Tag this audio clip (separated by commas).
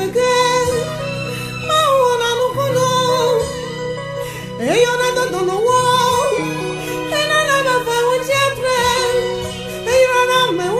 Gospel music, Music